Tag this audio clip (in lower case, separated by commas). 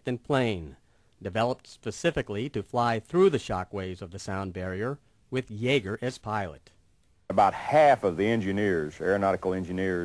speech